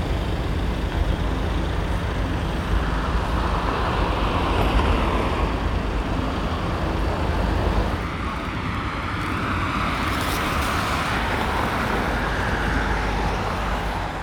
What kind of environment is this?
street